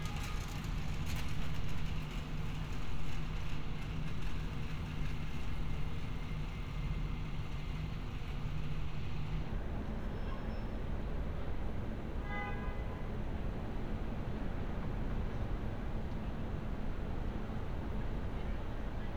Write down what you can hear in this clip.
car horn